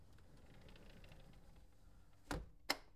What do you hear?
window closing